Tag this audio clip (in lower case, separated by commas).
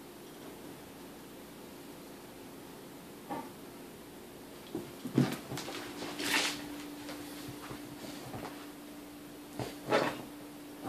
animal, dog, bow-wow, domestic animals, whimper (dog)